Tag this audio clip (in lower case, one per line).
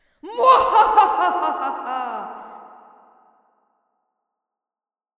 laughter
human voice